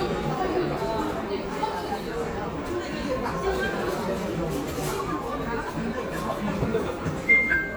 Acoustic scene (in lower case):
crowded indoor space